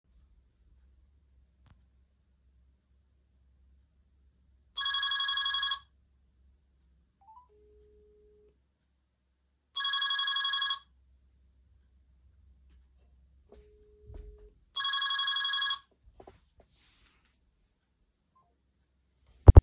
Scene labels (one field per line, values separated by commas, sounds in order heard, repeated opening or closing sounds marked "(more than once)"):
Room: living room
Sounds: phone ringing